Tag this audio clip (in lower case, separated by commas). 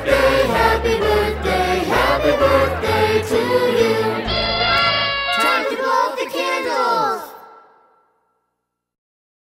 music, child singing, male singing